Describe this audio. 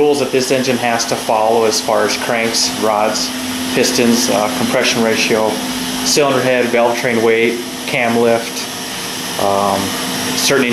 A man talking with machine operating in the background